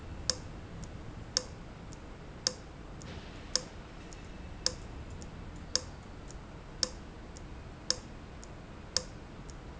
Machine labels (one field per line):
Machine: valve